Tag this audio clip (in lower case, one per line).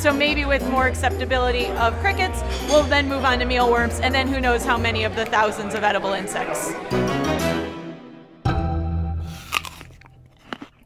music
speech